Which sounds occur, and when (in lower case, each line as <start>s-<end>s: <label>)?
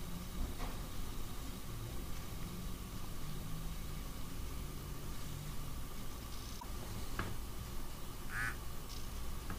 0.0s-9.5s: mechanisms
0.4s-0.7s: generic impact sounds
2.4s-2.5s: tick
3.0s-3.1s: tick
6.6s-6.7s: beep
7.1s-7.3s: generic impact sounds
8.3s-8.5s: cellphone buzz
8.9s-9.2s: generic impact sounds
9.5s-9.5s: generic impact sounds